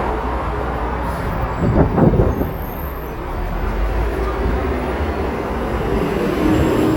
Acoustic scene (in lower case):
street